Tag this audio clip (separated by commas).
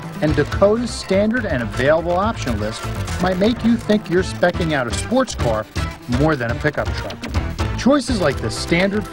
Speech, Music